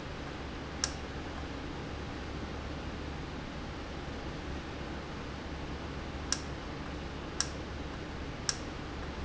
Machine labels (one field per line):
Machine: valve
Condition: normal